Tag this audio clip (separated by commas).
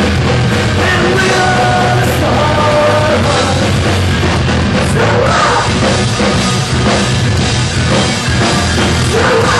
Music, Rock music, Punk rock